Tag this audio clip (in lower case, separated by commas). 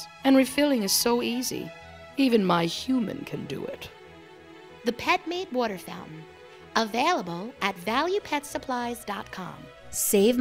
music, speech